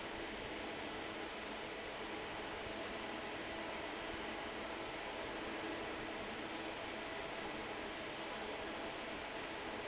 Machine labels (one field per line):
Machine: fan